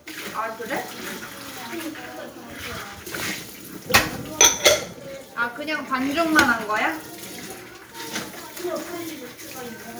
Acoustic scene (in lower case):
kitchen